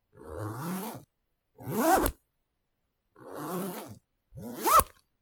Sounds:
home sounds, Zipper (clothing)

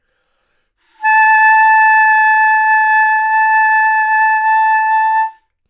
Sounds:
Musical instrument, woodwind instrument, Music

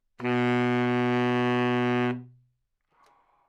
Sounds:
Wind instrument, Music, Musical instrument

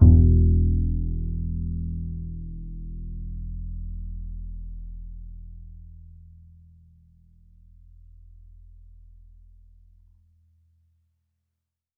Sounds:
Musical instrument, Music, Bowed string instrument

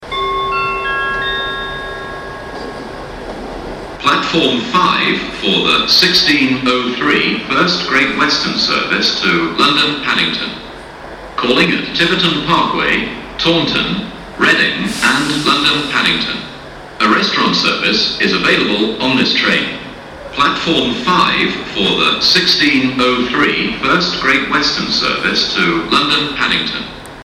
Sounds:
Vehicle, Rail transport, Train

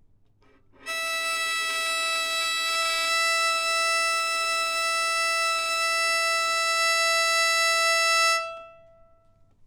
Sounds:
Musical instrument, Music, Bowed string instrument

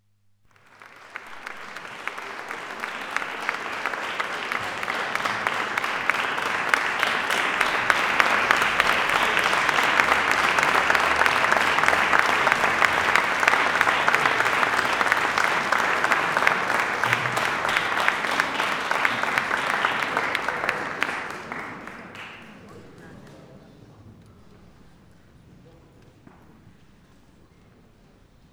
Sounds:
Applause, Human group actions

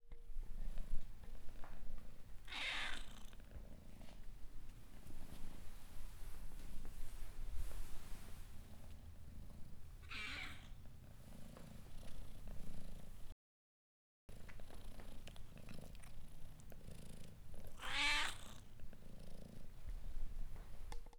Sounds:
pets, Cat, Purr, Meow, Animal

